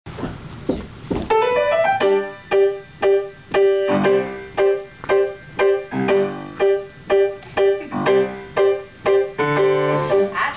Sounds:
Electronic organ, Music

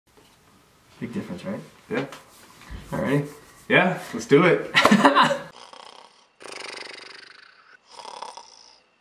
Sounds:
Speech, inside a small room

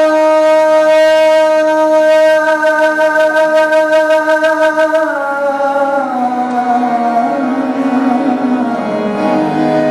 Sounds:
inside a large room or hall, Music

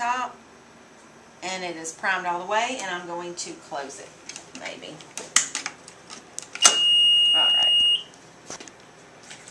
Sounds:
Speech, Cash register

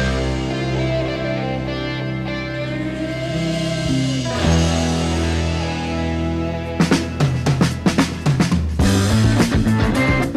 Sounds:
Music

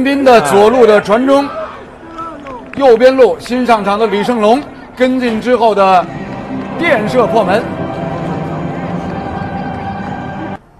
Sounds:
shot football

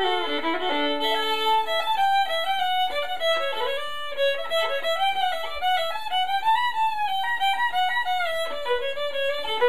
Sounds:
Violin, Music, Musical instrument

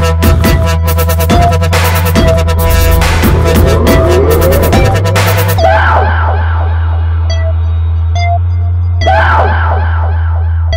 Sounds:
Music, Dubstep, Electronic music

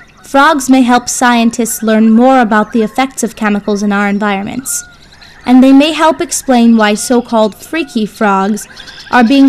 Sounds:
Speech

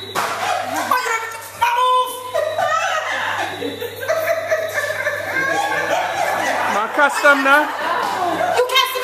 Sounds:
Speech, Female speech, Laughter

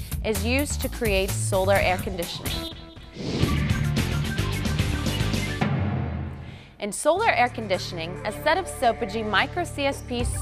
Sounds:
Speech, Music

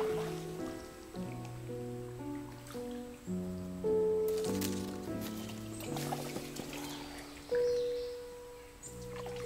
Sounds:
Music

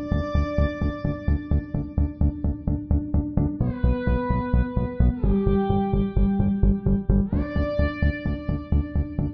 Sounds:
Music

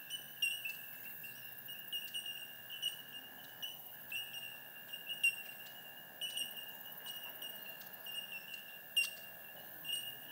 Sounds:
Sheep, Animal, livestock

